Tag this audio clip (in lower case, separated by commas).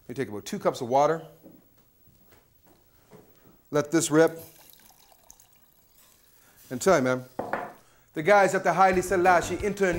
speech, inside a small room, music, water